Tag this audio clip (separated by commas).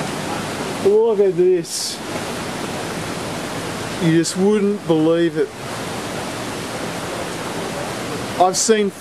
Rain